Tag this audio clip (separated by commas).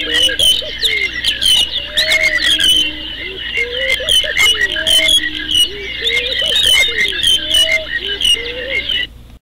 Coo, tweeting, bird call, Bird, Pigeon, tweet